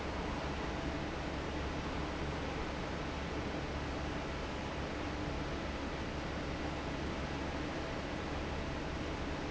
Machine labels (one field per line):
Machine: fan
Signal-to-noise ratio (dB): -6 dB